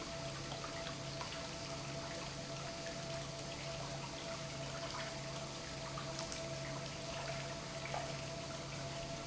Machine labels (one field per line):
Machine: pump